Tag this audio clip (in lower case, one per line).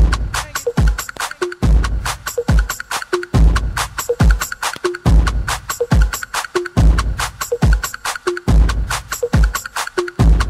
speech
music